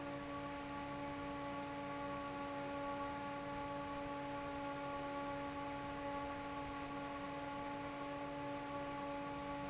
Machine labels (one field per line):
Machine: fan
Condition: normal